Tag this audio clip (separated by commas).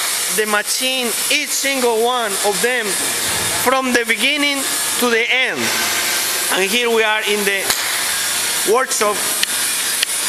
inside a large room or hall, Speech